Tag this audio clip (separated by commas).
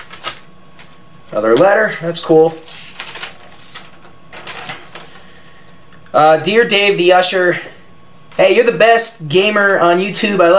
inside a small room, Speech